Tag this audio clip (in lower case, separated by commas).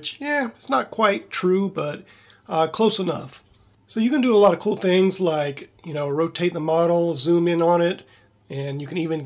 speech, narration